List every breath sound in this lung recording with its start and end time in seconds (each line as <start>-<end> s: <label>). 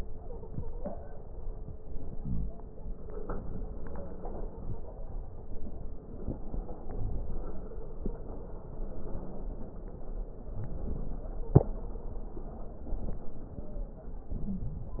0.15-1.39 s: stridor
1.79-3.25 s: inhalation
2.16-2.52 s: wheeze
3.44-5.18 s: stridor
7.32-8.60 s: stridor
11.28-12.55 s: stridor
13.48-14.13 s: stridor
14.34-14.98 s: wheeze